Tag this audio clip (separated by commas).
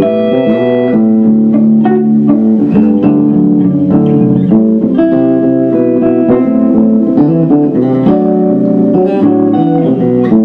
Music, Guitar, Musical instrument, Bass guitar, Plucked string instrument, Electric guitar